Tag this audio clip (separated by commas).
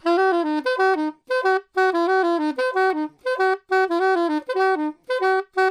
woodwind instrument, Musical instrument, Music